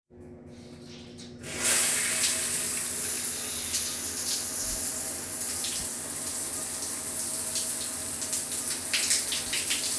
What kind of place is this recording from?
restroom